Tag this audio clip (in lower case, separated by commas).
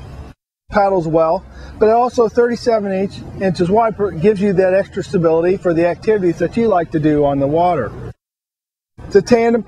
speech